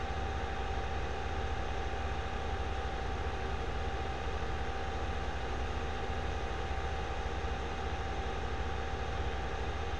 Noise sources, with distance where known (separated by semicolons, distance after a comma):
engine of unclear size, near